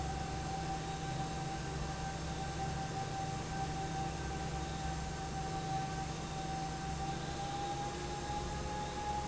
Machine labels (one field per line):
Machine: fan